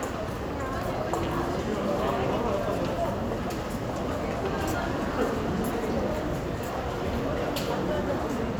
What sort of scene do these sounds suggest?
crowded indoor space